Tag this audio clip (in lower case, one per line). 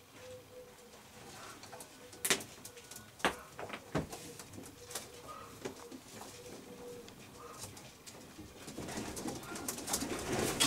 bird
inside a small room